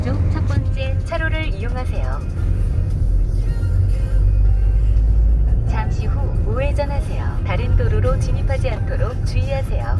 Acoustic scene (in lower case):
car